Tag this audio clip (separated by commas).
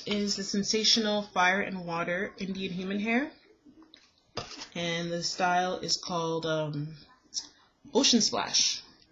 Speech